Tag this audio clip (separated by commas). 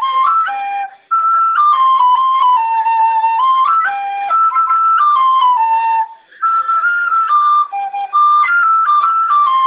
Music, Flute